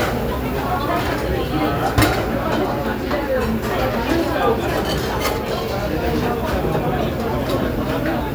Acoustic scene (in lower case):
restaurant